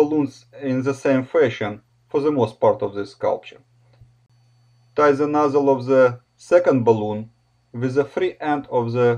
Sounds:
Speech

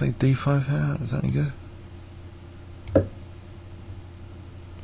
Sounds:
Speech

